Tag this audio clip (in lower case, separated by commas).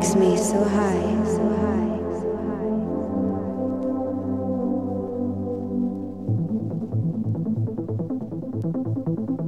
music, speech